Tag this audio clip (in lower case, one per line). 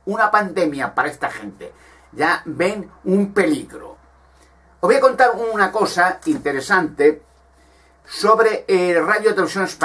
speech